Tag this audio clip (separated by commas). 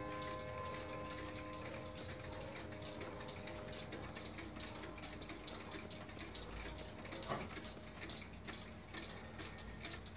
Tick-tock